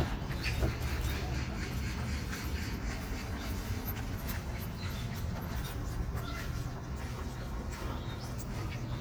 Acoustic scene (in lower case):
park